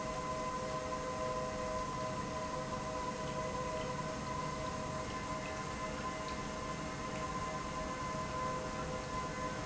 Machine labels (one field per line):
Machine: pump